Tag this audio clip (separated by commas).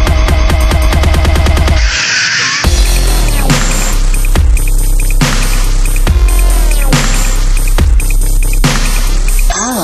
Music, Dubstep